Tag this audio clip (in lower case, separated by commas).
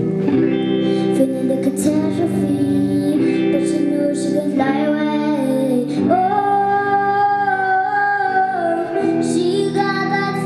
female singing, music, child singing